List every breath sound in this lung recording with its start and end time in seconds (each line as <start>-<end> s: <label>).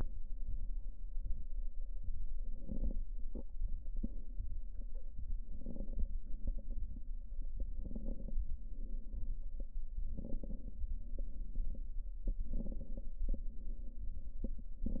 2.47-3.06 s: inhalation
2.47-3.06 s: crackles
5.48-6.07 s: inhalation
5.48-6.07 s: crackles
7.78-8.37 s: inhalation
7.78-8.37 s: crackles
10.19-10.78 s: inhalation
10.19-10.78 s: crackles
12.41-13.15 s: inhalation
12.41-13.15 s: crackles